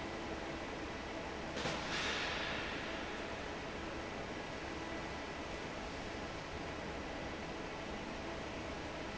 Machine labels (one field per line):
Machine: fan